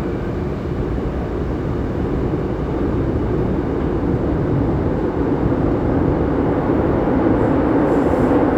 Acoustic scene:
subway train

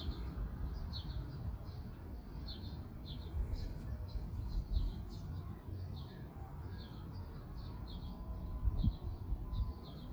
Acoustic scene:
park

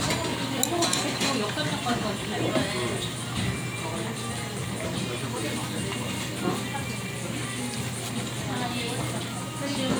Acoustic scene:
crowded indoor space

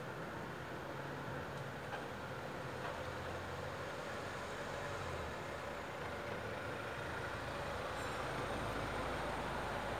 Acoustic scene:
residential area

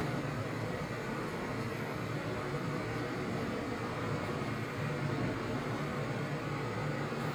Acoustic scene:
elevator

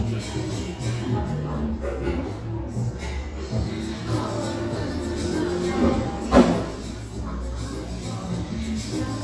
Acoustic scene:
cafe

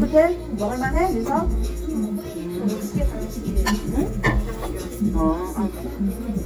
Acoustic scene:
restaurant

